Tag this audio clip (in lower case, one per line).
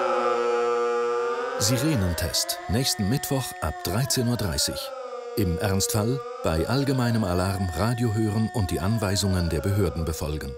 civil defense siren